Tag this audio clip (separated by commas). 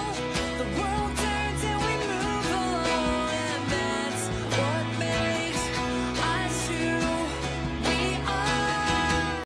Music, Pop music